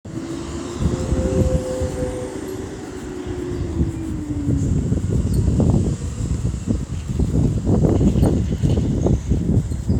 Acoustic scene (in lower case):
street